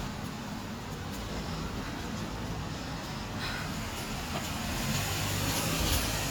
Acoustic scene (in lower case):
street